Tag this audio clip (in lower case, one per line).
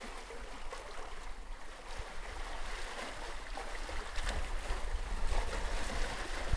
waves
water
ocean